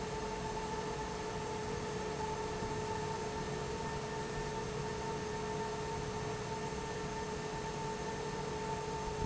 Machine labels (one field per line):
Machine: fan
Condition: normal